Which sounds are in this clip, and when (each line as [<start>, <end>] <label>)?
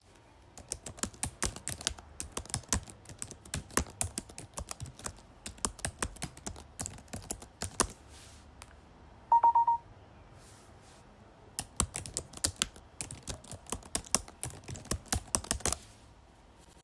[0.50, 8.73] keyboard typing
[9.21, 9.88] phone ringing
[11.49, 15.96] keyboard typing